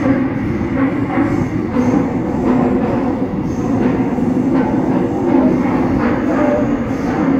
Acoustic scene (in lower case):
subway train